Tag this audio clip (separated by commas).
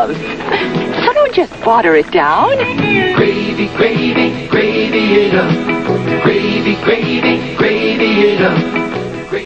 Speech, Music